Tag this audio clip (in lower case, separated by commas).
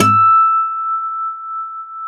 music, guitar, plucked string instrument, musical instrument, acoustic guitar